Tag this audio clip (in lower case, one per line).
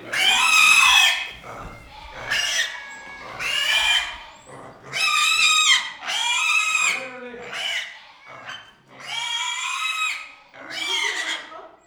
animal
livestock